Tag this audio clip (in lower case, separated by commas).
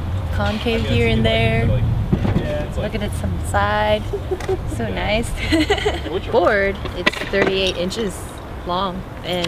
speech